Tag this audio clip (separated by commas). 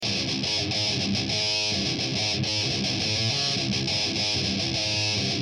Plucked string instrument, Musical instrument, Music, Guitar